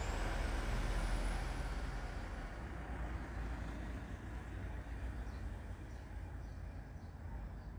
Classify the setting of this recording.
residential area